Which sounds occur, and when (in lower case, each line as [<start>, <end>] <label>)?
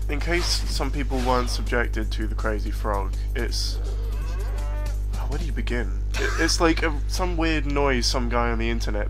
[0.00, 0.51] man speaking
[0.00, 9.05] mechanisms
[0.13, 0.81] sound effect
[0.64, 3.05] man speaking
[1.03, 1.62] sound effect
[2.80, 5.45] clip-clop
[3.06, 3.30] breathing
[3.28, 3.77] man speaking
[3.90, 4.91] moo
[5.07, 5.84] man speaking
[6.07, 6.50] chuckle
[6.07, 6.91] man speaking
[7.06, 9.05] man speaking
[7.59, 7.70] tick